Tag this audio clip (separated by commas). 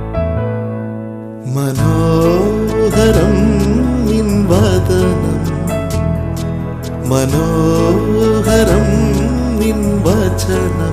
Music